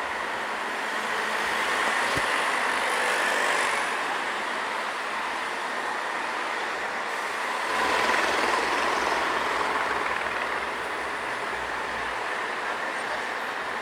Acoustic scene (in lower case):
street